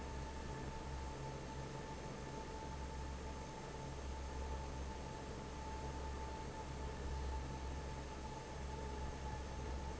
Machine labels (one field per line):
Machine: fan